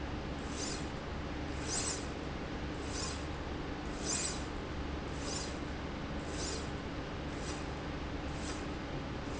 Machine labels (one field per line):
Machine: slide rail